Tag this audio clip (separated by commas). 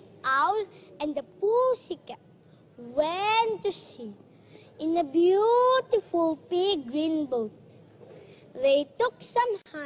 Speech